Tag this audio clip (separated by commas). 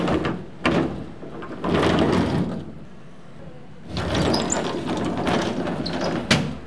home sounds, Door, Sliding door, Slam